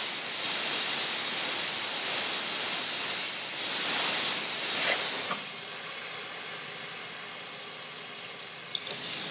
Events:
[0.01, 9.30] mechanisms

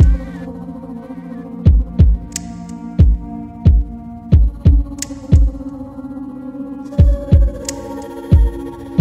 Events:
[0.00, 9.00] music
[1.62, 2.08] heart sounds
[2.95, 3.18] heart sounds
[3.60, 3.79] heart sounds
[4.34, 4.74] heart sounds
[5.25, 5.42] heart sounds
[6.93, 7.38] heart sounds
[8.28, 8.45] heart sounds

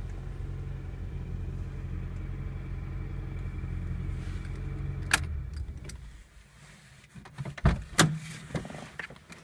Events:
[0.00, 6.23] car
[0.00, 9.43] background noise
[0.04, 0.17] tick
[2.12, 2.23] tick
[3.31, 3.47] generic impact sounds
[4.13, 4.51] surface contact
[4.42, 4.62] generic impact sounds
[5.03, 5.29] generic impact sounds
[5.49, 6.05] keys jangling
[6.53, 7.04] surface contact
[7.07, 7.57] generic impact sounds
[7.63, 7.84] thump
[8.00, 8.21] thump
[8.16, 8.45] surface contact
[8.54, 9.10] generic impact sounds
[9.28, 9.43] generic impact sounds

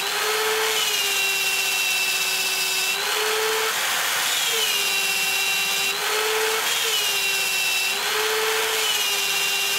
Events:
[0.00, 9.75] mechanisms

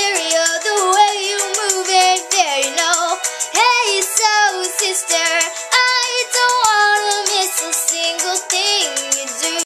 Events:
[0.00, 9.62] music
[5.70, 9.62] female singing

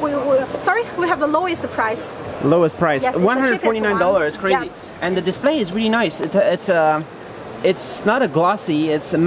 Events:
[0.00, 0.46] female speech
[0.00, 9.25] conversation
[0.00, 9.25] mechanisms
[0.60, 2.13] female speech
[2.42, 4.68] man speaking
[2.96, 4.66] female speech
[4.99, 7.05] man speaking
[7.61, 9.25] man speaking

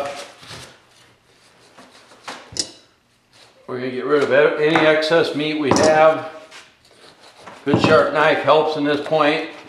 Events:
[0.00, 0.23] generic impact sounds
[0.00, 0.23] surface contact
[0.00, 9.65] background noise
[0.38, 0.65] surface contact
[0.40, 0.60] generic impact sounds
[0.84, 1.02] surface contact
[1.23, 2.17] knife
[1.73, 2.08] generic impact sounds
[2.22, 2.33] generic impact sounds
[2.54, 2.81] generic impact sounds
[3.01, 3.14] surface contact
[3.26, 3.51] surface contact
[3.66, 6.29] male speech
[4.10, 4.22] generic impact sounds
[4.67, 4.74] generic impact sounds
[5.67, 5.84] generic impact sounds
[6.13, 6.71] knife
[6.79, 6.87] generic impact sounds
[6.83, 7.58] knife
[7.40, 7.46] generic impact sounds
[7.62, 9.51] male speech
[7.67, 7.83] generic impact sounds
[8.95, 9.05] generic impact sounds
[9.06, 9.65] knife

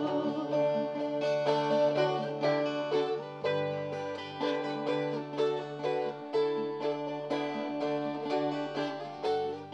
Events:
[0.00, 1.18] female singing
[0.00, 9.73] music

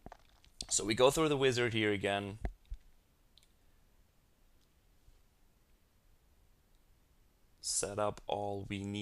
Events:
[0.00, 9.01] background noise
[0.04, 0.50] computer keyboard
[0.60, 2.40] man speaking
[2.41, 2.51] clicking
[2.66, 2.87] clicking
[3.36, 3.48] clicking
[4.63, 4.70] clicking
[6.75, 6.81] clicking
[7.67, 9.01] man speaking
[8.17, 8.25] clicking

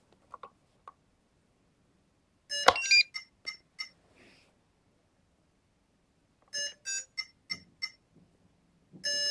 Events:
[0.00, 0.50] generic impact sounds
[0.00, 9.30] mechanisms
[0.83, 0.94] generic impact sounds
[2.45, 3.26] alarm
[2.63, 2.79] generic impact sounds
[3.42, 3.58] alarm
[3.76, 3.90] alarm
[4.07, 4.45] generic impact sounds
[6.39, 6.73] generic impact sounds
[6.49, 7.29] alarm
[7.46, 7.63] alarm
[7.48, 7.59] generic impact sounds
[7.78, 7.92] alarm
[8.09, 8.25] generic impact sounds
[8.99, 9.30] alarm

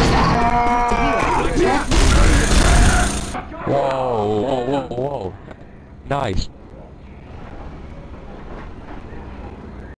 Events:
[0.00, 9.93] mechanisms
[0.00, 9.93] video game sound
[0.12, 1.32] shout
[0.58, 1.84] woman speaking
[1.22, 1.90] man speaking
[1.88, 3.33] gunshot
[2.05, 2.42] man speaking
[2.58, 3.03] man speaking
[3.22, 5.29] man speaking
[3.85, 3.95] tick
[4.84, 4.93] tick
[5.43, 5.55] tick
[6.06, 6.47] man speaking
[6.64, 6.75] tick
[7.87, 7.98] tick
[8.94, 9.03] tick
[9.12, 9.87] man speaking
[9.73, 9.83] tick

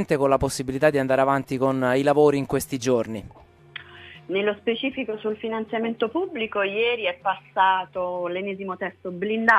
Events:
[0.01, 3.35] man speaking
[3.37, 9.55] music
[4.27, 7.41] female speech
[7.52, 8.98] female speech
[9.03, 9.55] female speech

